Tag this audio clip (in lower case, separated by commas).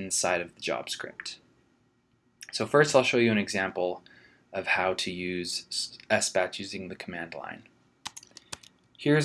speech